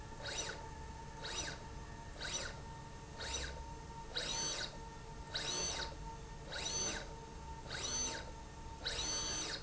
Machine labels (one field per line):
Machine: slide rail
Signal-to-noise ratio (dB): 6 dB